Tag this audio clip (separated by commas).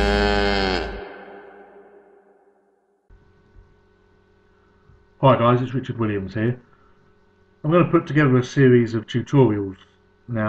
Speech, inside a small room